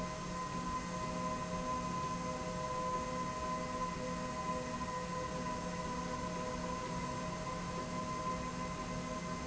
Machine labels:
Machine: slide rail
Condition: normal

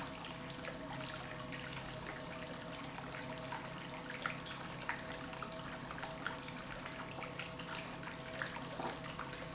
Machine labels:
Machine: pump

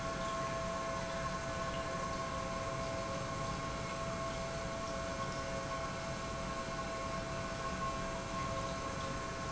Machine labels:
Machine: pump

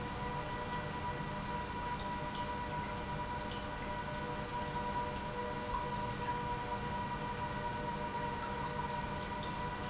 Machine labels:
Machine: pump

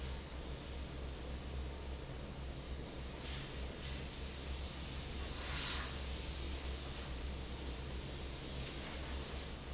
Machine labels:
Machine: fan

